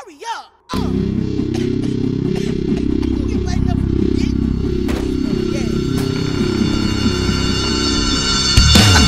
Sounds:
speech, music, pop music

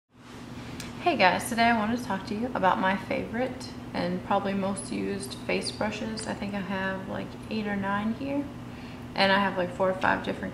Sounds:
speech

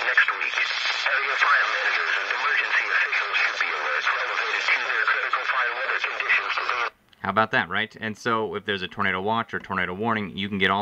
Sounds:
speech, radio

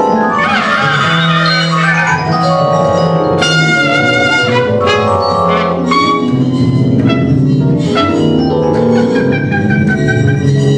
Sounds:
musical instrument, trumpet, music

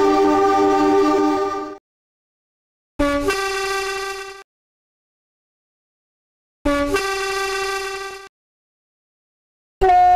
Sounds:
train horn

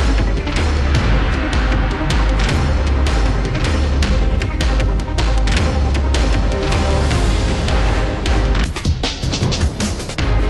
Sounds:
music

